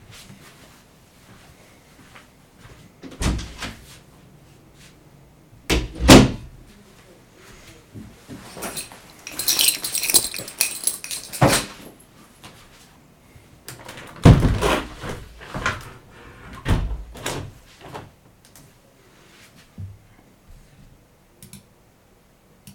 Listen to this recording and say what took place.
I walked to a door. When I opened the door, I entered the room and closed it. I took my bag, put the keys out and dropped the bag on the floor. Then I went to the window and opened it.